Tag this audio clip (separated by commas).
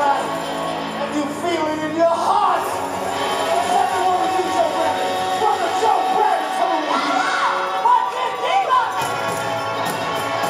Music, Crowd, Speech